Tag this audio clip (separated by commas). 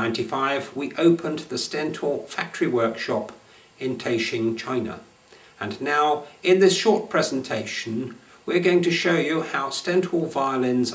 Speech